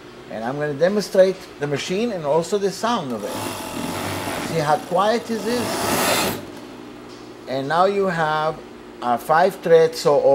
An adult male speaks, during which a sewing machine starts and operates briefly